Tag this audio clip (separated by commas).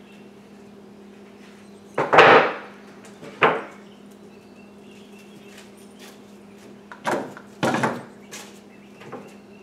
Wood